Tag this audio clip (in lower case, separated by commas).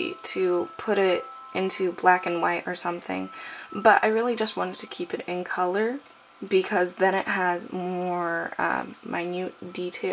music, speech